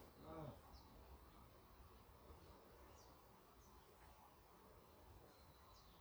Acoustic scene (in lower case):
park